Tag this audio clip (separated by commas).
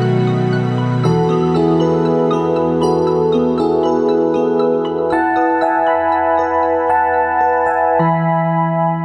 Marimba, Glockenspiel, Mallet percussion